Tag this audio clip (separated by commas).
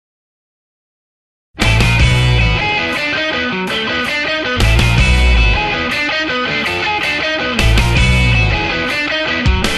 Electric guitar, Music